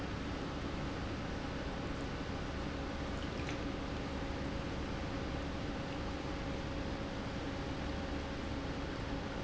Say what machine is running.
pump